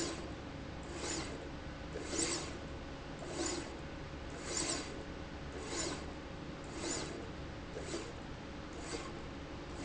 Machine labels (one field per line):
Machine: slide rail